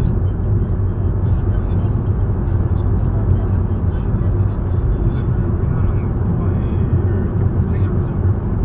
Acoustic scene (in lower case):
car